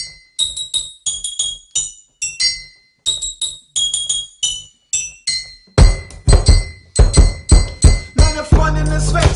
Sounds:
inside a small room, Music

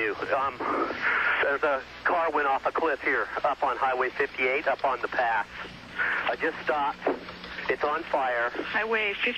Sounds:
Speech

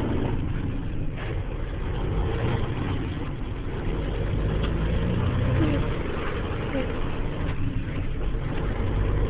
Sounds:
Vehicle

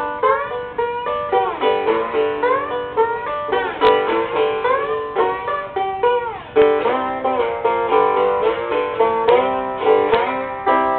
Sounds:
Guitar, Musical instrument, Music, Strum, Plucked string instrument

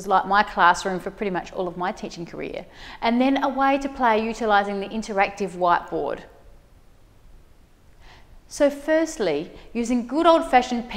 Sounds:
Speech

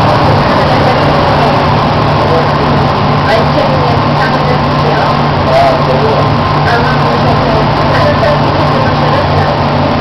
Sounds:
Speech

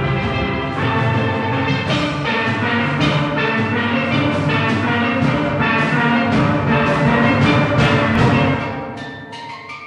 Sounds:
playing steelpan

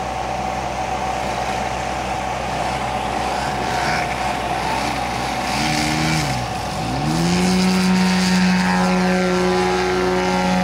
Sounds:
Vehicle

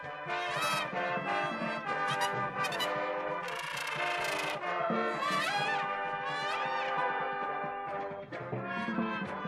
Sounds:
Music

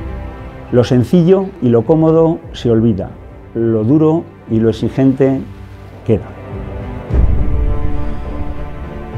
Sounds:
Speech, Music

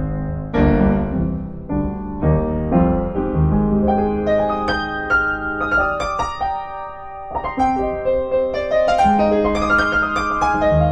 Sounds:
Piano

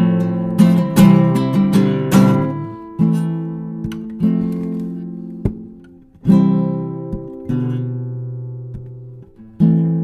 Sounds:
Music, Acoustic guitar

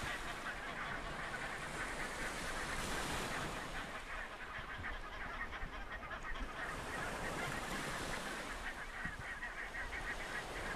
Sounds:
Goose, Fowl, Honk

